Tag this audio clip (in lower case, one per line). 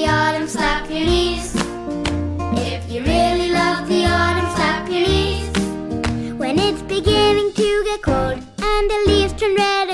child singing